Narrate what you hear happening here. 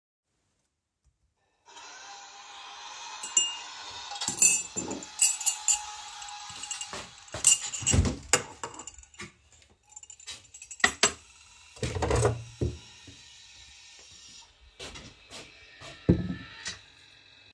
I am turning on the coffee machine and getting a cup. I open the fridge and take milk out.